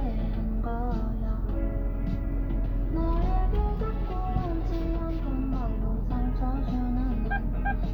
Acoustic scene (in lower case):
car